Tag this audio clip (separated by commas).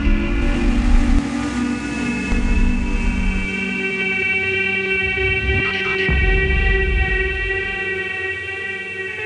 Speech, Music